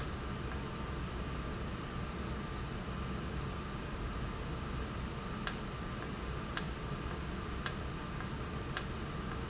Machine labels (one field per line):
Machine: valve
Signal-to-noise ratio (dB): -6 dB